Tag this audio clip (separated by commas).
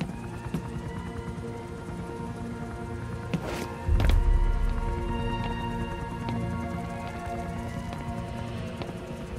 Music